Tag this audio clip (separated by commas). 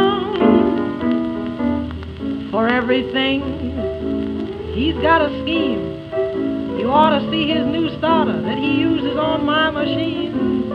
Music